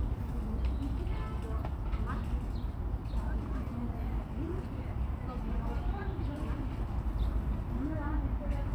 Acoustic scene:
park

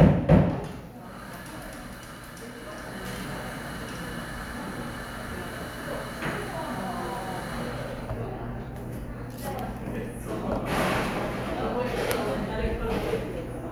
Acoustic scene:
cafe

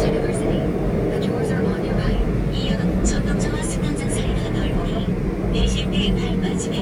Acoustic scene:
subway train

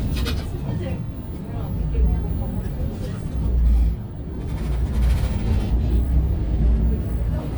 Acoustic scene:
bus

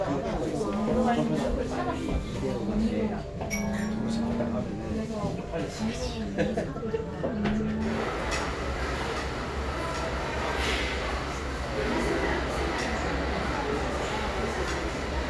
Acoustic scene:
crowded indoor space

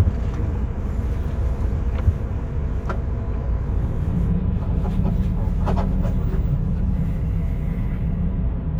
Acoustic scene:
car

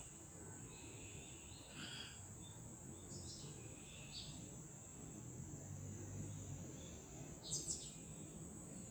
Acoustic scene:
park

